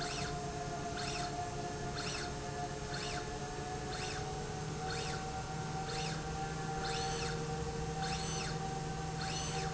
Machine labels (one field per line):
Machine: slide rail